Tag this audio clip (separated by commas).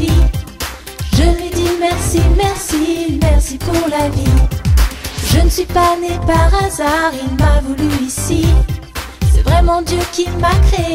Music, Singing